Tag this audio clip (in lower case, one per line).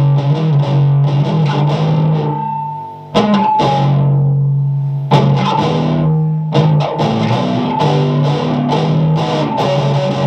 musical instrument
plucked string instrument
strum
music
electric guitar
guitar